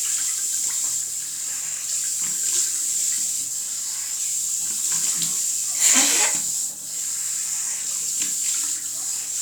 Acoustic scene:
restroom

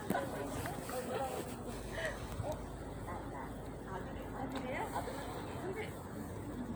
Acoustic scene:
residential area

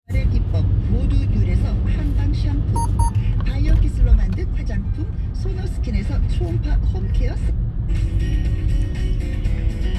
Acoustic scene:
car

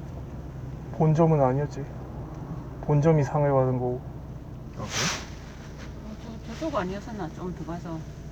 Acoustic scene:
car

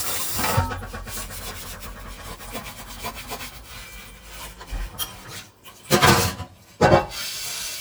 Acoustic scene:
kitchen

